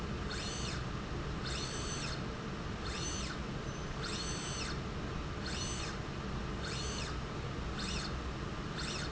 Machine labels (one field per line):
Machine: slide rail